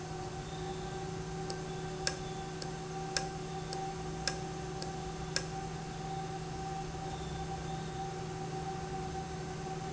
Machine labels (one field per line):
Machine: valve